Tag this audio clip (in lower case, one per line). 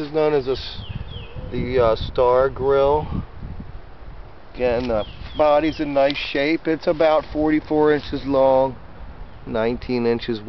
speech